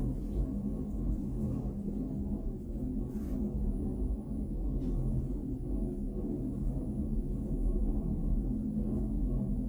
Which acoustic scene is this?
elevator